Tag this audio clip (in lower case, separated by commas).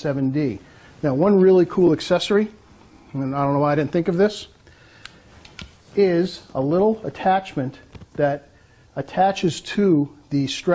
speech